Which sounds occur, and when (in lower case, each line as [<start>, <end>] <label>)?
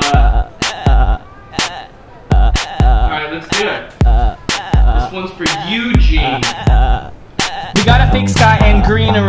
[0.00, 0.45] rapping
[0.00, 9.25] music
[0.59, 1.19] rapping
[1.21, 1.52] human voice
[1.53, 1.88] rapping
[2.04, 2.28] human voice
[2.30, 3.08] rapping
[3.04, 3.86] male speech
[4.02, 4.32] rapping
[4.32, 4.46] human voice
[4.49, 5.13] rapping
[4.91, 6.43] male speech
[5.45, 5.71] rapping
[6.08, 7.07] rapping
[7.37, 7.71] rapping
[7.73, 9.25] male singing